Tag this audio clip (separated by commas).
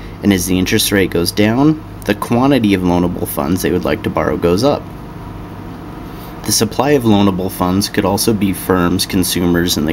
Speech